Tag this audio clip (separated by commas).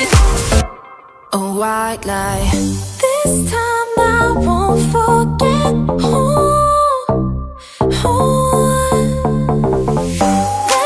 Music